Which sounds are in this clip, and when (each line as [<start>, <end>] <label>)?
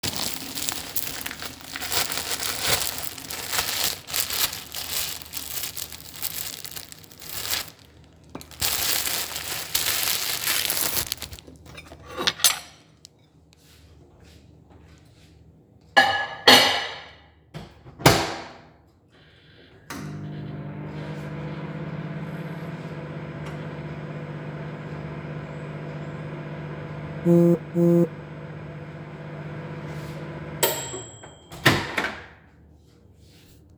[11.84, 12.90] cutlery and dishes
[15.89, 17.26] cutlery and dishes
[17.49, 18.81] microwave
[19.72, 32.61] microwave
[27.23, 28.27] phone ringing